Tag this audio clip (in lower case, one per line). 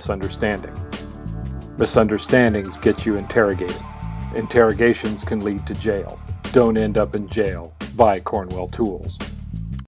speech
music